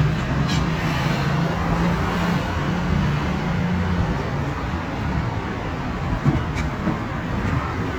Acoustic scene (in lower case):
street